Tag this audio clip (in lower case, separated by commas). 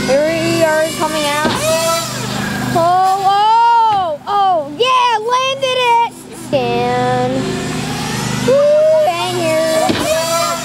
speech, car